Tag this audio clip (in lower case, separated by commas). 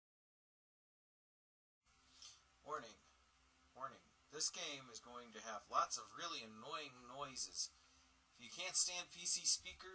speech